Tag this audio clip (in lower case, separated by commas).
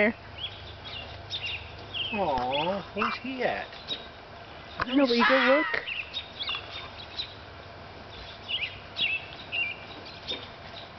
domestic animals, animal, speech